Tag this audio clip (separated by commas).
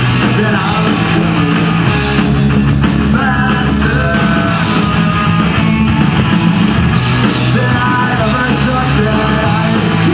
Roll, Singing, Music